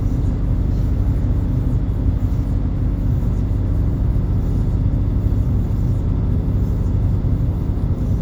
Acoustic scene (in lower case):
bus